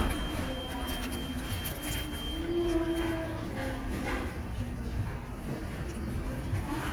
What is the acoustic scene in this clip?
restaurant